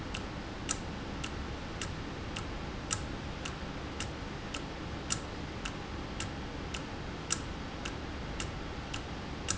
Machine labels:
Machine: valve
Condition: normal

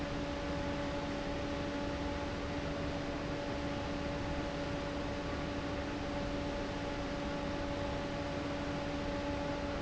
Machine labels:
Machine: fan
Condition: abnormal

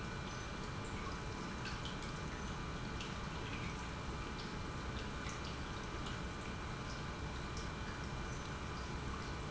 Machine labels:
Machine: pump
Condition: normal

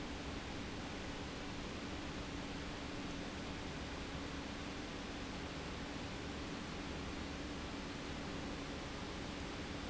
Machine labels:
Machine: pump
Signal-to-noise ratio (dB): 0 dB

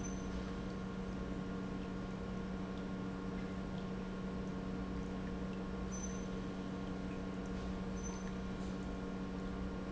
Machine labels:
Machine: pump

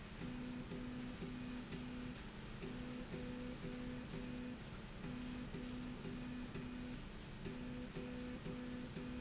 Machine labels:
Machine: slide rail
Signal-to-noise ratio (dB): 6 dB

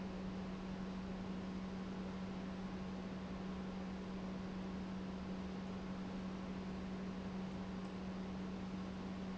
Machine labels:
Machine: pump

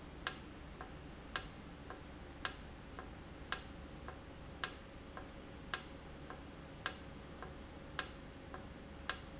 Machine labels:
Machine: valve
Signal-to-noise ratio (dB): 6 dB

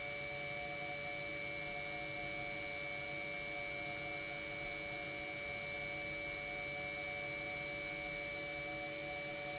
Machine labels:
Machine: pump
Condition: normal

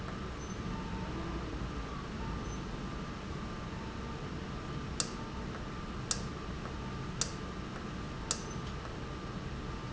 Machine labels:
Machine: valve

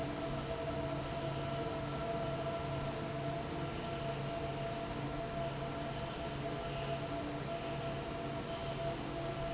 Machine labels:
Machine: fan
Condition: normal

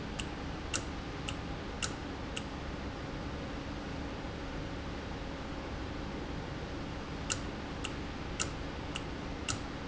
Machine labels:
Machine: valve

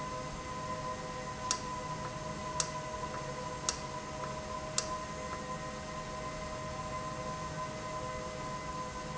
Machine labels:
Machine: valve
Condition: normal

